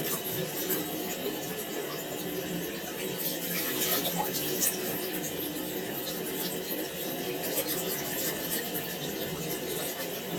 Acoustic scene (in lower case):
restroom